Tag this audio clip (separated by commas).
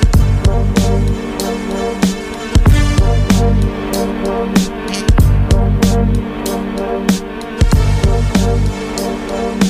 Music